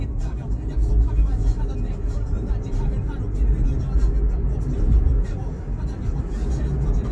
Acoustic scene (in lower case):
car